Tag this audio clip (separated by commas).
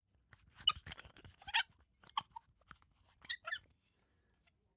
Squeak